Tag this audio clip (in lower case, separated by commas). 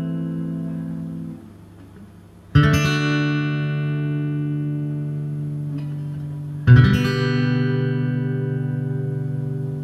plucked string instrument, musical instrument, music, acoustic guitar, inside a small room